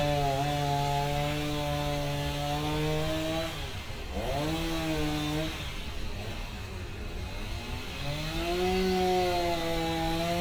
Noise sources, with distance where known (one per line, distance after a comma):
chainsaw, near